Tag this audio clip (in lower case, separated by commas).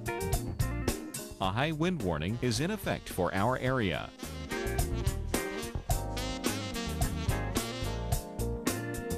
music, speech